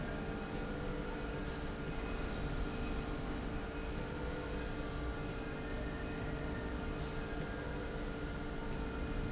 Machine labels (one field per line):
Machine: slide rail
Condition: normal